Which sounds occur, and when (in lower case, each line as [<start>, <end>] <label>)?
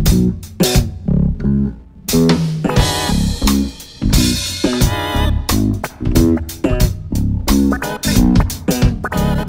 [0.05, 9.45] music